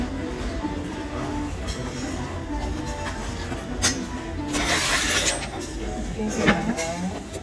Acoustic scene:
restaurant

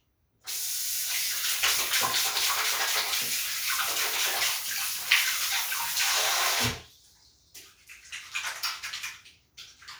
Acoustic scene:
restroom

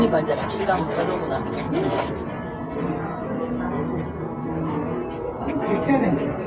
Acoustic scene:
cafe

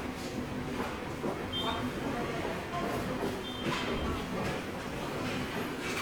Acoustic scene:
subway station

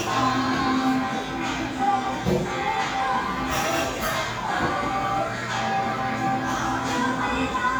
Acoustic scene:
cafe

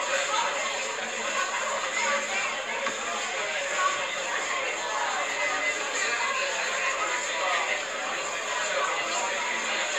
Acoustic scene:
crowded indoor space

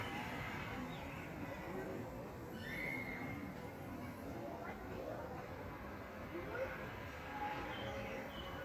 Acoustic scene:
park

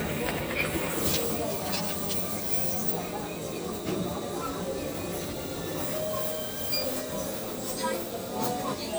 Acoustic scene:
crowded indoor space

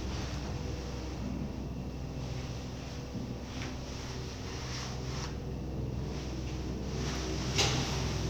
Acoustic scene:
elevator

